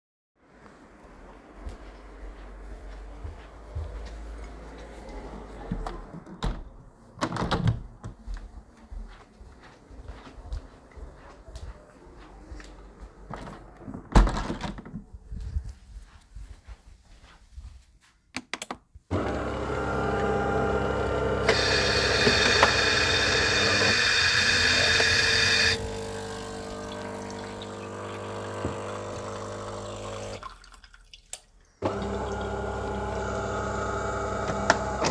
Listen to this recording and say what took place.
I closed 2 windows and then went and made some coffee. While the machine is working, i take a glass fill it with water.